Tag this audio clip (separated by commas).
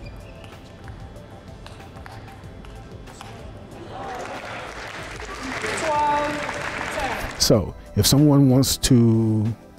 playing table tennis